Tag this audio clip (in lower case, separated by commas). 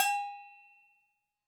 bell